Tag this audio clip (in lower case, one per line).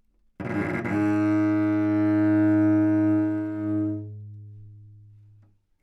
bowed string instrument
music
musical instrument